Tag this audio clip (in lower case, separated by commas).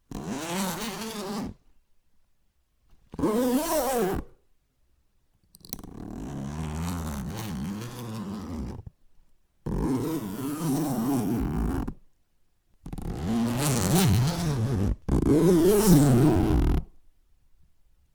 zipper (clothing), domestic sounds